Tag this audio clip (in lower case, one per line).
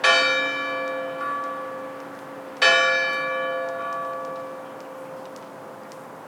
bell
church bell